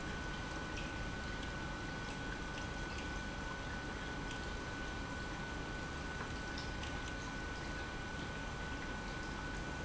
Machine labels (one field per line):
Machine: pump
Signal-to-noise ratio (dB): 0 dB